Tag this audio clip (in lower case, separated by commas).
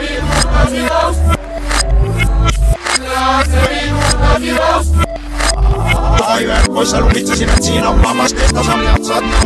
music, sound effect